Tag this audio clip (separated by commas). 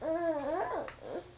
Human voice, Speech